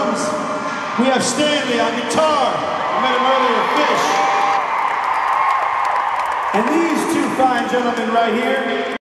Male voice, followed by cheering and clapping